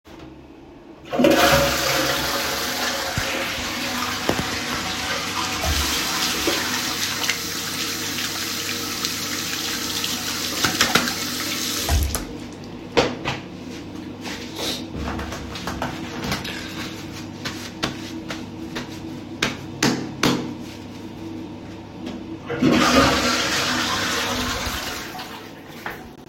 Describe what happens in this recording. after using toilet i flush the toilet and wash my hand